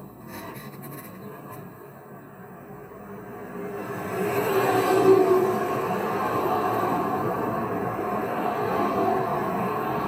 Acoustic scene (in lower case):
street